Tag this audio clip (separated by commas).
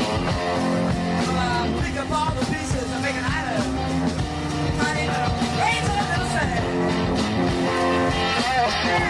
Music, Rock and roll